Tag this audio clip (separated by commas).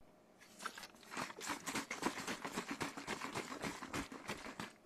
Liquid